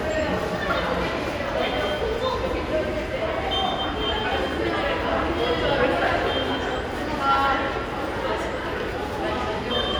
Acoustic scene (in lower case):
subway station